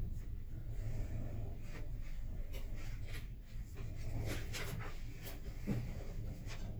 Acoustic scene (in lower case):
elevator